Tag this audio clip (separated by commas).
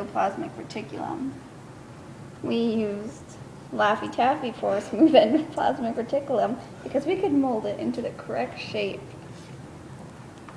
Speech